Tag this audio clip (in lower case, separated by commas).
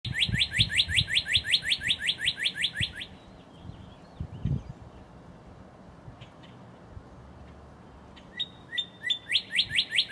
bird, bird song